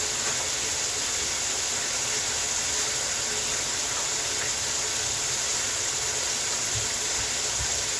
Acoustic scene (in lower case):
kitchen